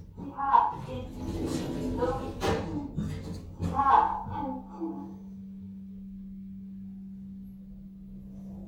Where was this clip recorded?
in an elevator